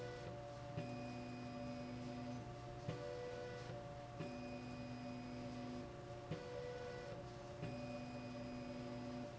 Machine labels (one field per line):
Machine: slide rail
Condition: normal